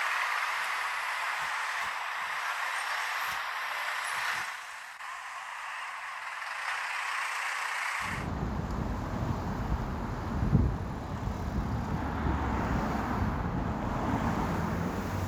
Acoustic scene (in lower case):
street